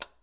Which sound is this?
plastic switch being turned on